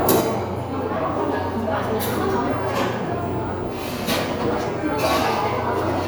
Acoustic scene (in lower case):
cafe